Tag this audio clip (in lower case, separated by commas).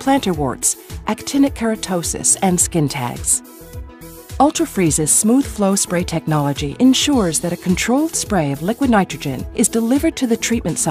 speech, music